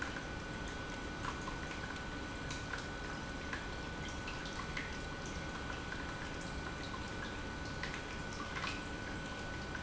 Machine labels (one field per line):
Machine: pump